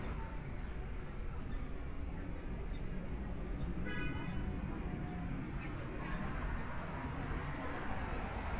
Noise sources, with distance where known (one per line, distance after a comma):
car horn, near